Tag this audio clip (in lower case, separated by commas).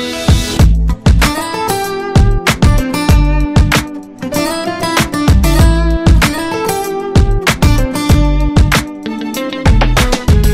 music